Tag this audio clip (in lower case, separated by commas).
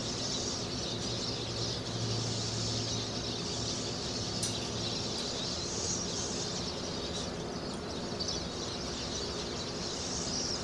bird, outside, rural or natural